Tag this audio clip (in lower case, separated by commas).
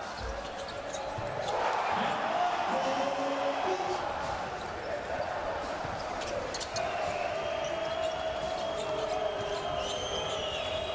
speech